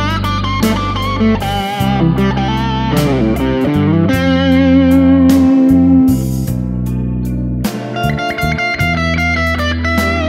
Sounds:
plucked string instrument, guitar, bass guitar, electric guitar, musical instrument, music

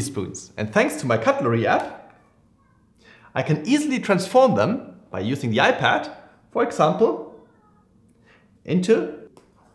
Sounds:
speech

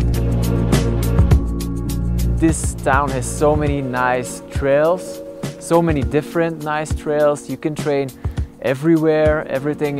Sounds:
speech, music

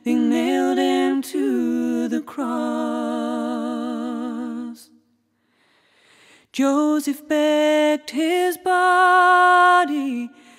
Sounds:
singing, song, music

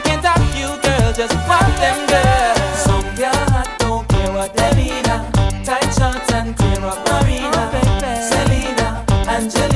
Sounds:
music, hip hop music, music of africa

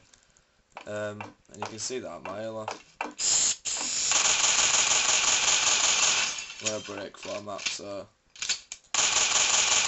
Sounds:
speech

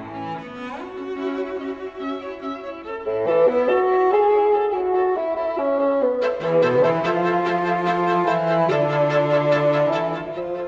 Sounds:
fiddle, double bass, cello, bowed string instrument

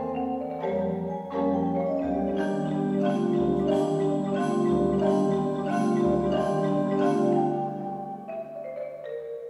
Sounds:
musical instrument, music, xylophone

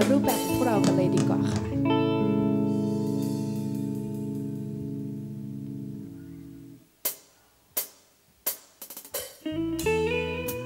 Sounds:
background music, music, speech

